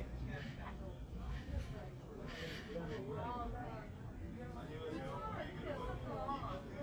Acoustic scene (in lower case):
crowded indoor space